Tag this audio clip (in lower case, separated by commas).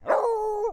domestic animals, dog, bark, animal